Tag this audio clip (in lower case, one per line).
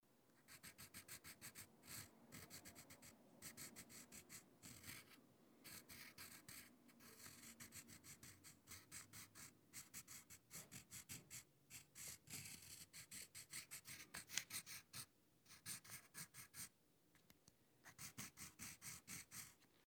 writing
home sounds